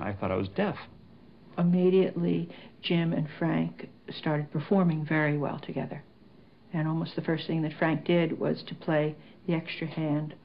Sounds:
speech

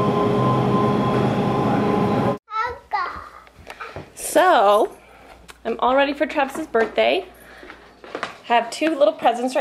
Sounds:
child speech

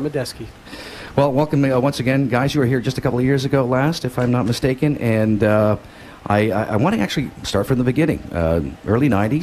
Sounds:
speech

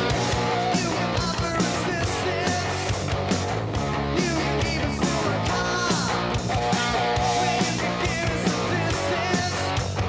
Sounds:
music

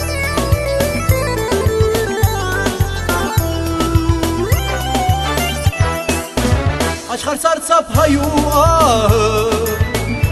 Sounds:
music

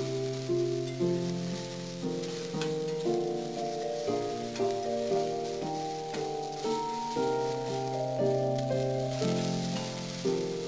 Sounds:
music

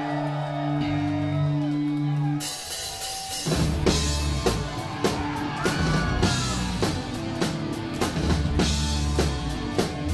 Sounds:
music

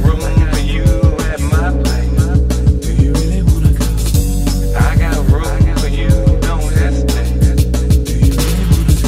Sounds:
music

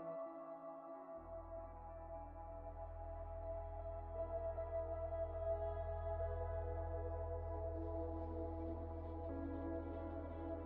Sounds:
music

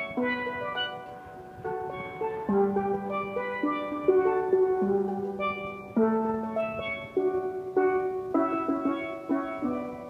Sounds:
steelpan, music

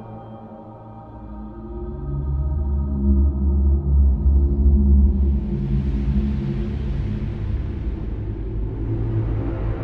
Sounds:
music

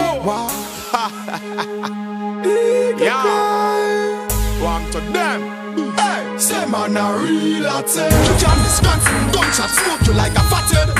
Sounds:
music

